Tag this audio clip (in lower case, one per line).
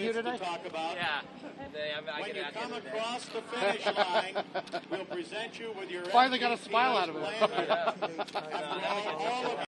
speech